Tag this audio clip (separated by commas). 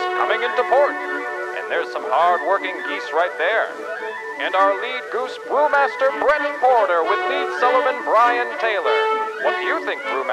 Music, Speech